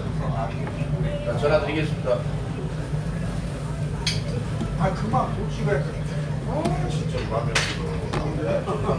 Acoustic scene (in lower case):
restaurant